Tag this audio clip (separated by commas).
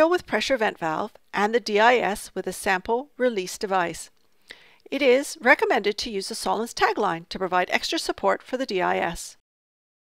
Speech